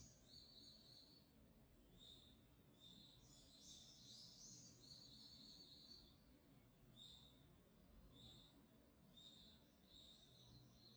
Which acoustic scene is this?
park